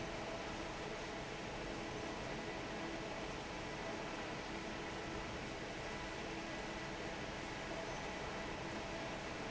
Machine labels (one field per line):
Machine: fan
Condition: normal